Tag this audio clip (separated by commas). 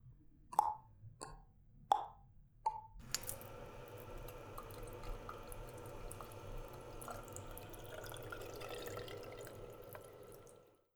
faucet, home sounds